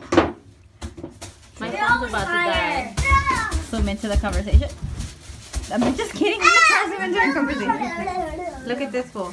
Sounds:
kid speaking, speech

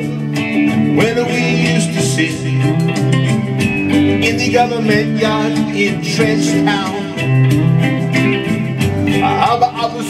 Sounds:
music, plucked string instrument, musical instrument, acoustic guitar, strum, guitar

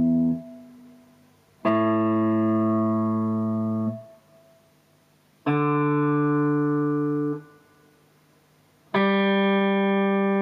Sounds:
electronic tuner, plucked string instrument, music, musical instrument, guitar

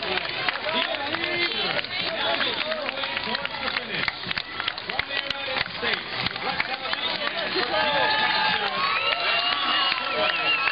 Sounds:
speech, outside, urban or man-made

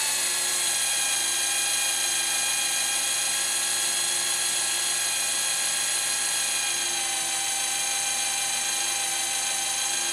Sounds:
power tool, tools, drill

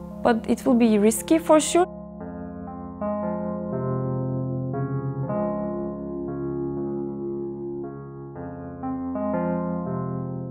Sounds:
music, speech

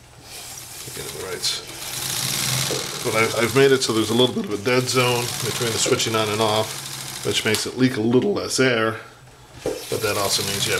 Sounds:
speech, engine

